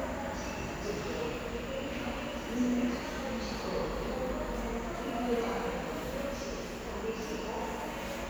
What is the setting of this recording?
subway station